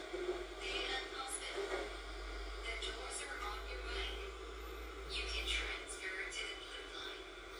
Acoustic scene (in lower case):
subway train